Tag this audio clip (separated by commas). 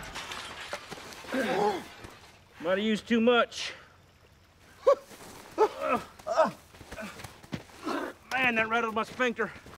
Speech